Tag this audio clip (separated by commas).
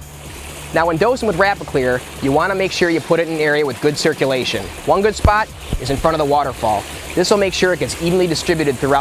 Speech, Music